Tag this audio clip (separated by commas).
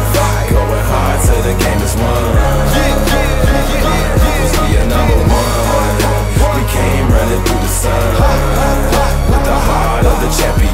Ringtone, Music